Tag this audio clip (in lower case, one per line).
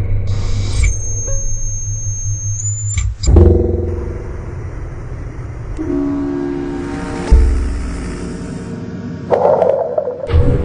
music
sound effect